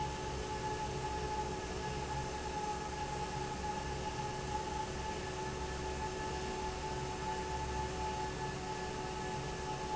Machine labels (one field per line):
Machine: fan